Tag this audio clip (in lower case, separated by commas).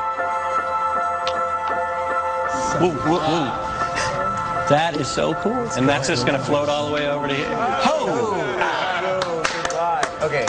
music, speech